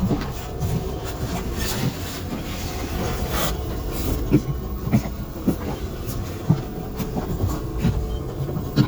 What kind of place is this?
bus